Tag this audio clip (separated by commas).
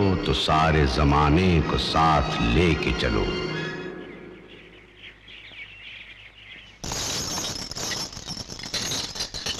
outside, rural or natural, Music, Speech, inside a large room or hall